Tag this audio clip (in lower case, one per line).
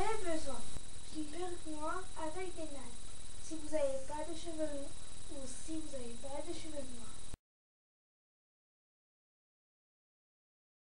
speech